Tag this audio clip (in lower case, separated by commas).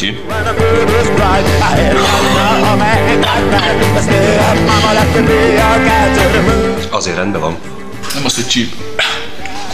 music, speech